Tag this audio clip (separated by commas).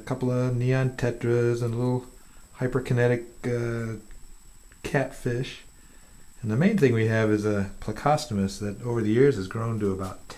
Speech